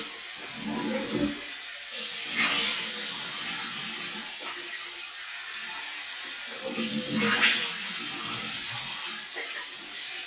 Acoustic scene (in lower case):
restroom